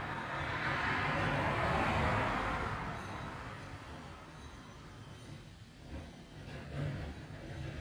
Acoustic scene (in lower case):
street